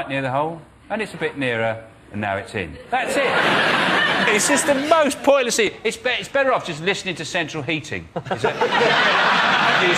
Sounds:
speech

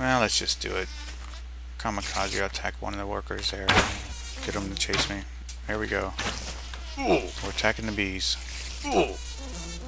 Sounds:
insect, fly, mosquito

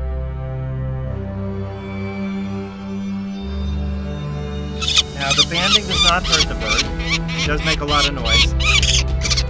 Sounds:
bird, music, speech, outside, rural or natural

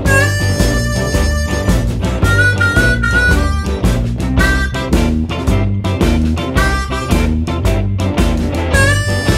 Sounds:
music, harmonica, musical instrument, guitar

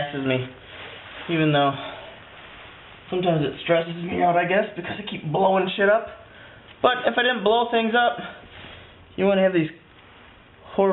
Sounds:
speech

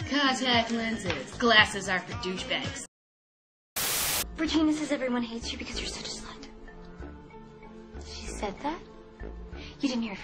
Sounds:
music, speech

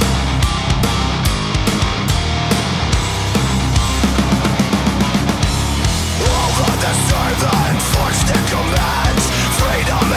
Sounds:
funk, music

